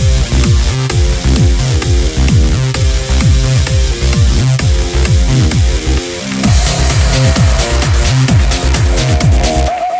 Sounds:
techno

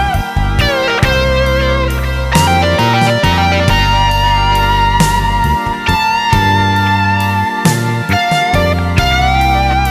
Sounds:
music

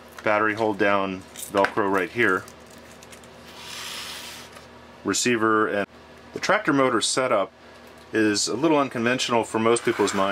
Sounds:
inside a small room
speech

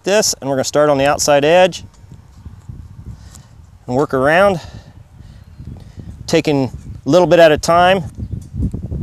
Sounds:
speech

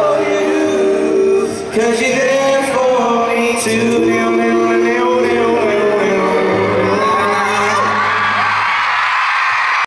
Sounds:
choir
male singing
music

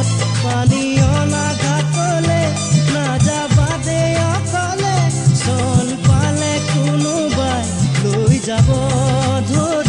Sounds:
music of bollywood
music of asia
music

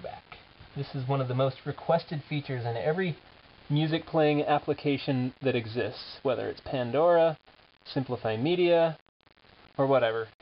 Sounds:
speech

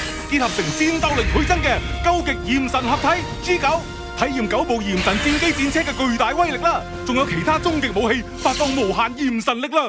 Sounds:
speech
music

